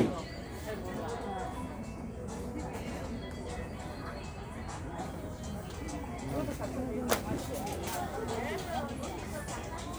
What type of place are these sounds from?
crowded indoor space